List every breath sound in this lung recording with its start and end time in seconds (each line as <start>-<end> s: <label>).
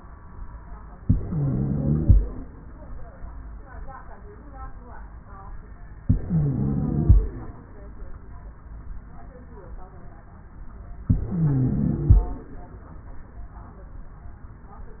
0.95-2.20 s: inhalation
0.95-2.20 s: wheeze
6.00-7.26 s: inhalation
6.00-7.26 s: wheeze
11.13-12.31 s: inhalation
11.13-12.31 s: wheeze